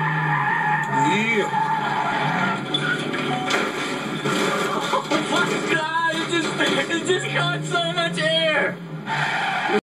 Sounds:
speech

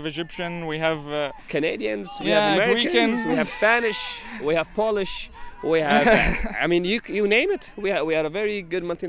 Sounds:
speech

